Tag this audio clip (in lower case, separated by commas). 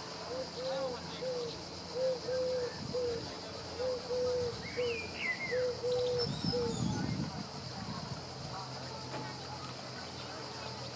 speech, bird, dove